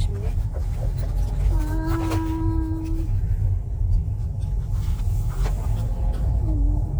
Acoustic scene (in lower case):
car